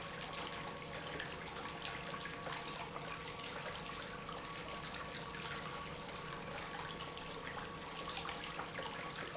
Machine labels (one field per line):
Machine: pump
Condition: normal